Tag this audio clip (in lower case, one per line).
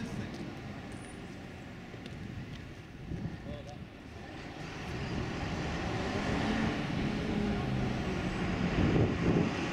speech
vehicle
bus